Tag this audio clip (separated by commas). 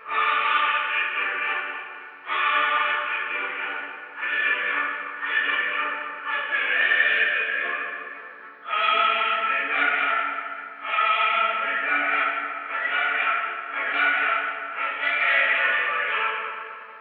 Singing, Human voice, Music, Musical instrument